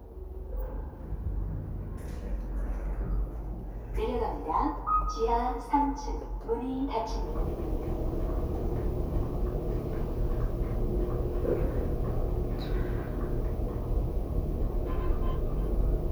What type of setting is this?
elevator